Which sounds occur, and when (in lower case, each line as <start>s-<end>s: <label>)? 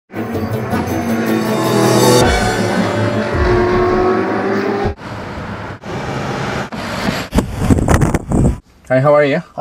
0.1s-4.9s: revving
0.1s-8.9s: car
7.3s-8.6s: wind noise (microphone)
8.9s-9.6s: male speech